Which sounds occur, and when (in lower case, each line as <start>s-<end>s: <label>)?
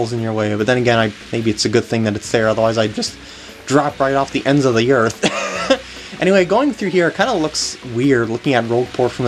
0.0s-9.2s: video game sound
0.1s-1.0s: male speech
1.3s-3.1s: male speech
3.6s-5.1s: male speech
5.2s-6.0s: laughter
6.1s-9.2s: male speech